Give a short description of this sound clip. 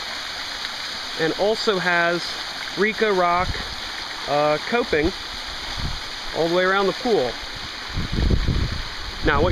A man is speaking and water flows